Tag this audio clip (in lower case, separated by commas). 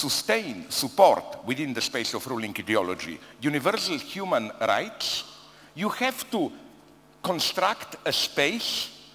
speech, conversation